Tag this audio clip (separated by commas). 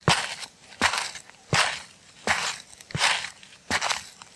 footsteps